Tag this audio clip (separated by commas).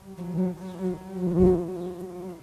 Wild animals, Insect, Animal